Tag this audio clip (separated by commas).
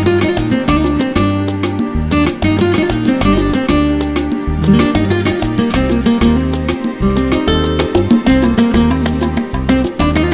Guitar, Music, Flamenco